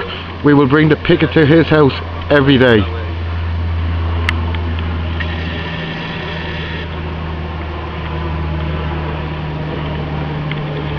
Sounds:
Speech

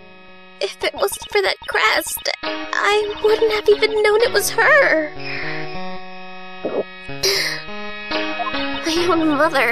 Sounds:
Music, Speech

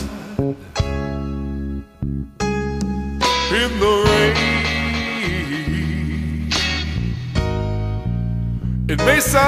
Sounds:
Music

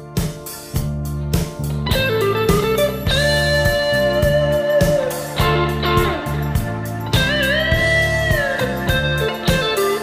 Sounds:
Guitar, Music, Rock music, Musical instrument, Bowed string instrument, Plucked string instrument

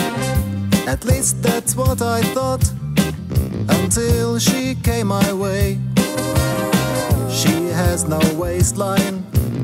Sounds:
Music, Blues, Rhythm and blues

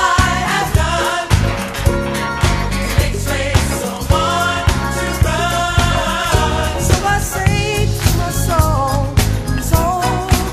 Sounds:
Choir, Music

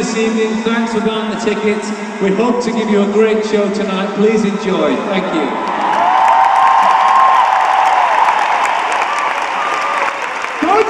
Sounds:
Speech, monologue, man speaking

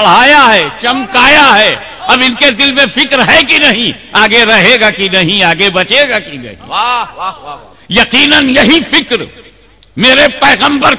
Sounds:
monologue, Speech, Male speech

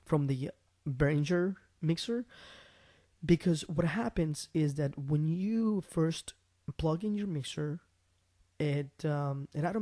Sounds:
Speech, Narration

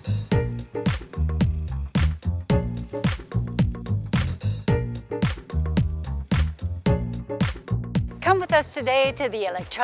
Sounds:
Music, Speech, Electronica

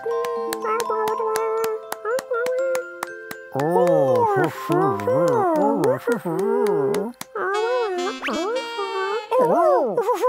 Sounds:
Jingle, Music

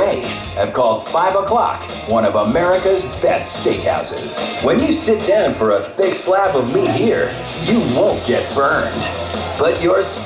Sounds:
Speech, Music

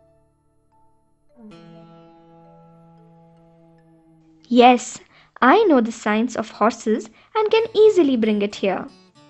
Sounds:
Harpsichord, kid speaking

